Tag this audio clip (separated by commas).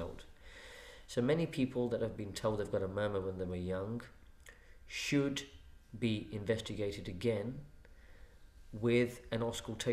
Speech